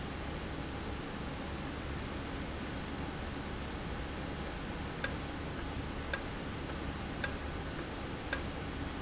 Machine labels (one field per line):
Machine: valve